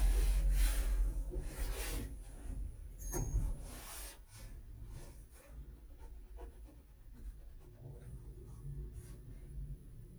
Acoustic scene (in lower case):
elevator